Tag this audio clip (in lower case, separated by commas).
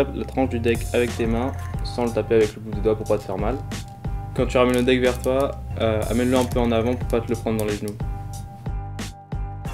music, speech